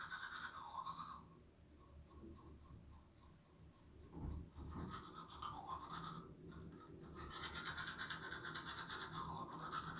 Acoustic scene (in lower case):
restroom